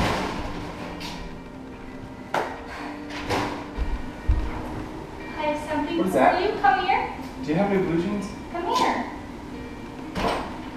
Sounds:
Speech, Music

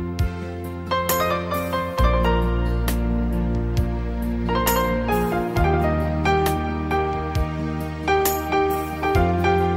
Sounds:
Music

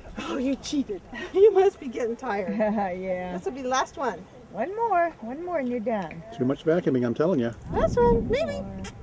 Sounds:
outside, urban or man-made, Speech

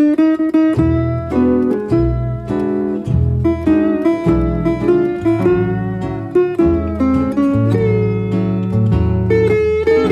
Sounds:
Acoustic guitar, Music, playing acoustic guitar

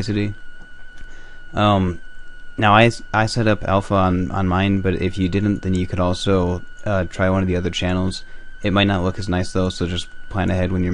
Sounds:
Speech

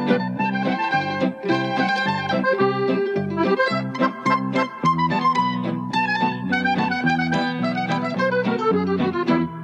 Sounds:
Music

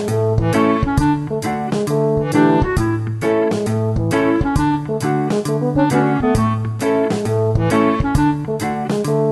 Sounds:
Music

